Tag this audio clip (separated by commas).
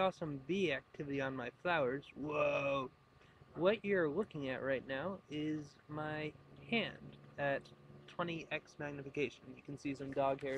Speech